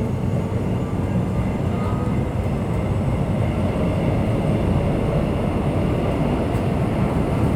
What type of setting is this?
subway train